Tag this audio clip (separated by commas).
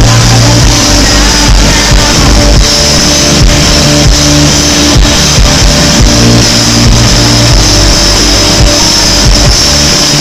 Music